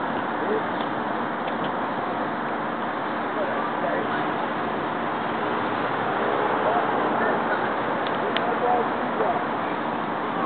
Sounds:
Speech, Engine

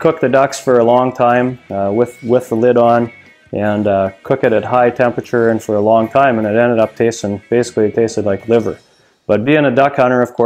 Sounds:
Speech, Music

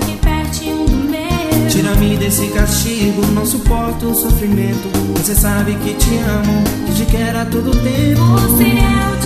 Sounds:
Music, Christmas music

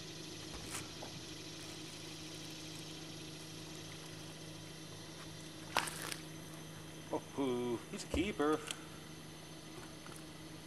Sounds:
Speech

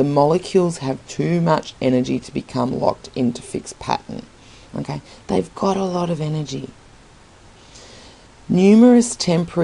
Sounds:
Speech

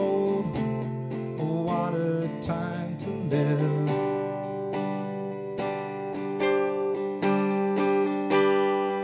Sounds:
Singing, Strum, Music

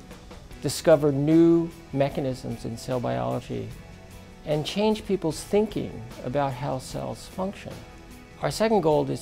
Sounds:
Music, Speech

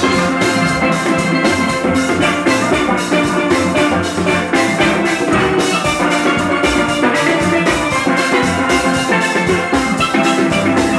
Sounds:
playing steelpan

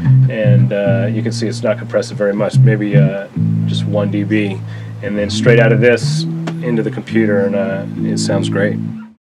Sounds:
Speech, Music

